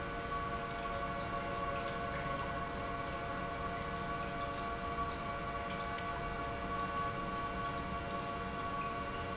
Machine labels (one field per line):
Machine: pump